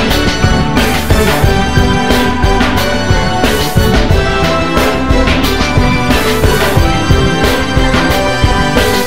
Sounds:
Music

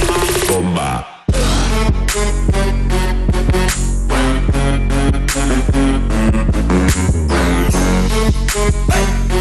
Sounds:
Music

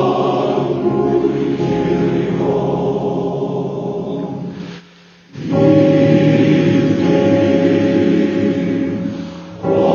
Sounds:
Chant, Music

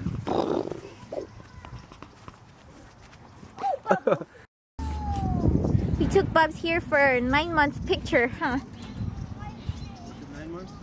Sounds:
outside, rural or natural, Speech, kid speaking

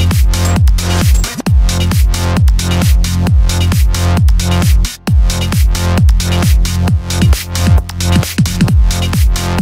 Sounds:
Music

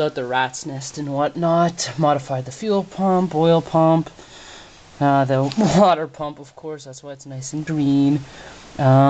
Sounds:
Speech

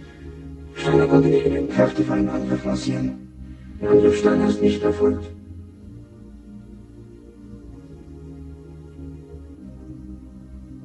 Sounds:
Music, Speech

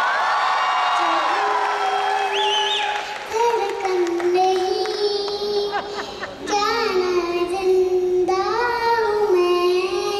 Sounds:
child singing

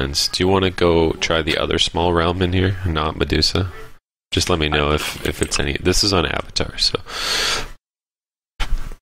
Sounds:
Speech

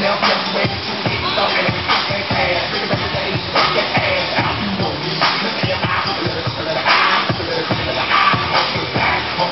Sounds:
Music, inside a large room or hall

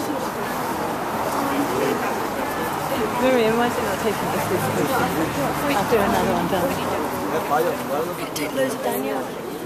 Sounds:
Speech

